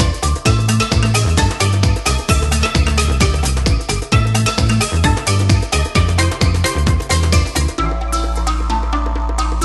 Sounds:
Independent music, Music

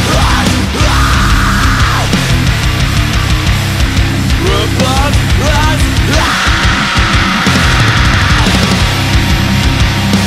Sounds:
Music

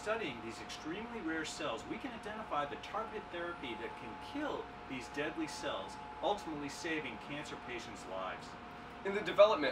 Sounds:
Speech

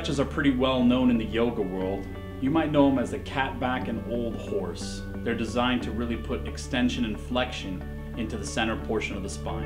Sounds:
Speech, Music

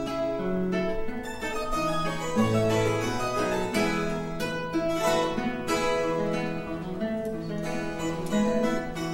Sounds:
Guitar, Harpsichord, Music, Classical music, playing harpsichord, Piano, Musical instrument, Bowed string instrument

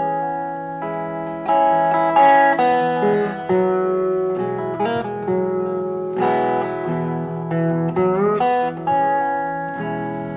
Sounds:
Plucked string instrument, Music

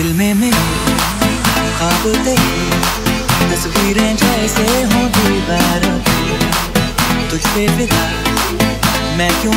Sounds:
Music

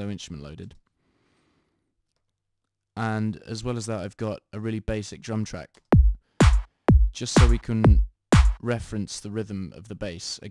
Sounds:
Speech, Electronic music, Music

